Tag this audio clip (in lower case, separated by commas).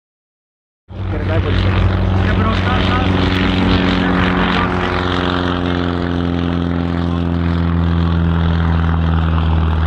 propeller, vehicle